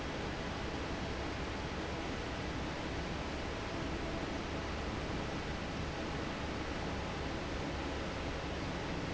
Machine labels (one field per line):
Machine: fan